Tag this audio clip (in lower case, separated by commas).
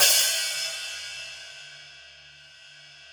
percussion, musical instrument, cymbal, music, hi-hat